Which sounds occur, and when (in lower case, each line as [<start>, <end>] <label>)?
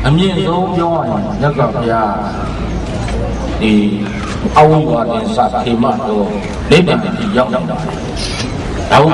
[0.00, 2.65] male speech
[0.00, 9.13] background noise
[2.86, 3.16] generic impact sounds
[3.58, 4.39] male speech
[4.13, 4.38] generic impact sounds
[4.57, 7.74] male speech
[6.40, 6.61] generic impact sounds
[8.15, 8.62] human sounds